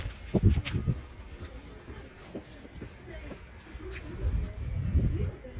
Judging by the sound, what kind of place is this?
residential area